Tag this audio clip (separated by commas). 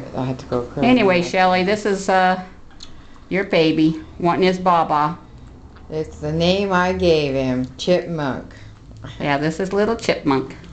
Speech